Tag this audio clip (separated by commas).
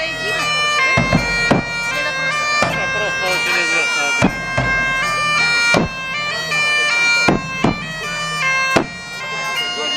Speech, Bagpipes, playing bagpipes, Music